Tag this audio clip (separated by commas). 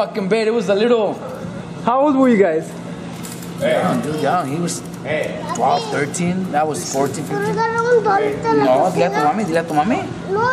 Speech